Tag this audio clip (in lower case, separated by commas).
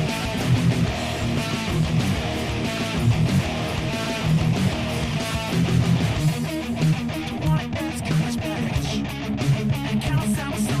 musical instrument, plucked string instrument, music, bass guitar, guitar, strum, playing bass guitar